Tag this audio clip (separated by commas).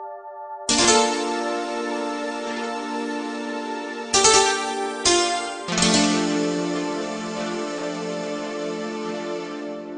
Music